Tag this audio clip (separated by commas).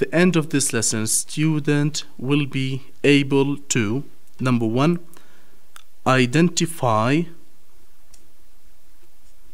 Speech